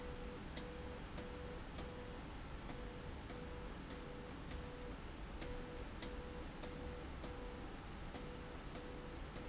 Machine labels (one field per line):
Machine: slide rail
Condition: abnormal